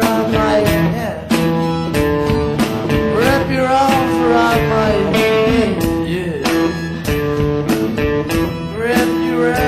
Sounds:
singing, music, rock music, musical instrument

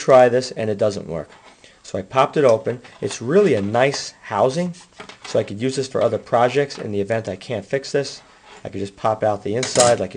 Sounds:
speech, inside a small room

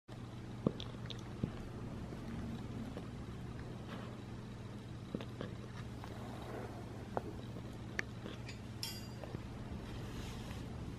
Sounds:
dog, pets, animal

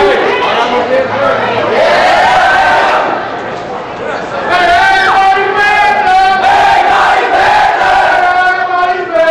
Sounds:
speech

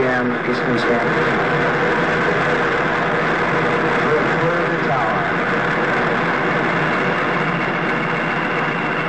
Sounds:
speech

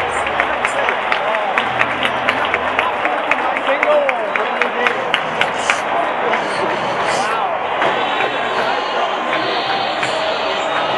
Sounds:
speech

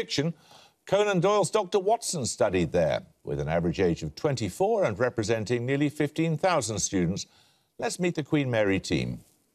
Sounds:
speech

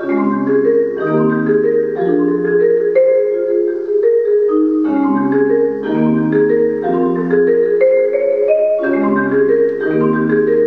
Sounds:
xylophone, glockenspiel, mallet percussion

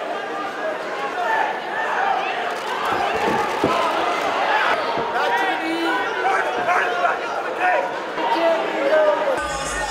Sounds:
speech, inside a large room or hall

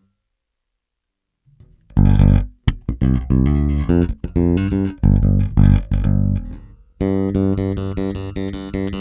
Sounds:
electronic tuner, inside a small room, music

